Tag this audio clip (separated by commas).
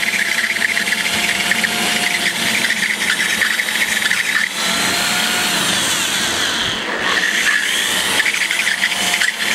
inside a small room